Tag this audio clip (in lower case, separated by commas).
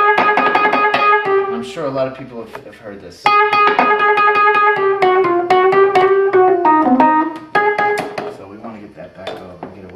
speech, musical instrument, electric piano, piano, music